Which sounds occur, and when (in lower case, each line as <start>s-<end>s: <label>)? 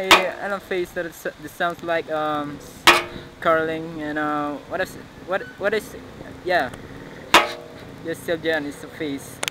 0.0s-2.5s: female speech
0.0s-9.5s: mechanisms
0.1s-0.2s: generic impact sounds
1.6s-1.8s: generic impact sounds
2.8s-3.1s: generic impact sounds
3.4s-4.6s: female speech
4.7s-5.0s: female speech
5.3s-5.9s: female speech
6.4s-6.8s: female speech
7.3s-7.5s: generic impact sounds
8.0s-9.3s: female speech
9.4s-9.5s: generic impact sounds